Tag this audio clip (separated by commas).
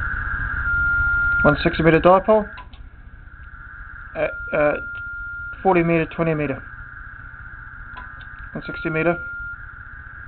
Radio, Speech